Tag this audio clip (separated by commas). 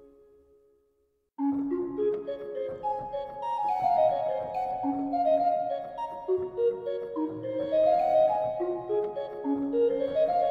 Musical instrument, Music